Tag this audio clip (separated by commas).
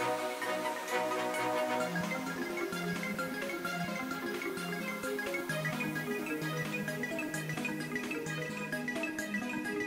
Music